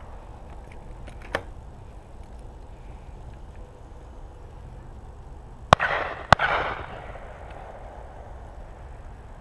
A gunshot in the distance, followed by two gunshots much closer